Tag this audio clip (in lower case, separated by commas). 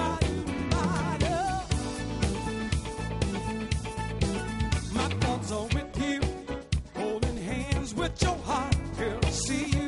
independent music, music